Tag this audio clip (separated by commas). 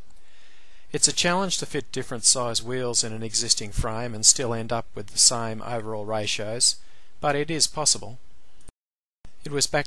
Speech